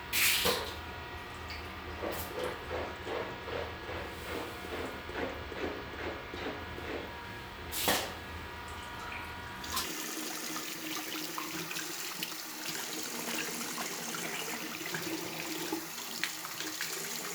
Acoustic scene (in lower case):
restroom